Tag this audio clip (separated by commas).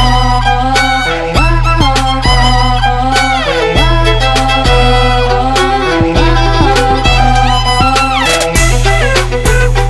Musical instrument, Violin, Music